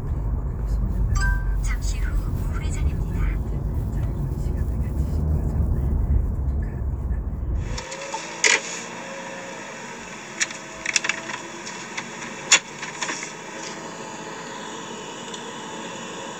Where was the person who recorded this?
in a car